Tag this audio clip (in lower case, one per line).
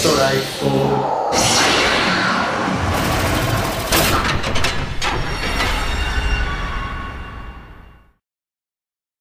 speech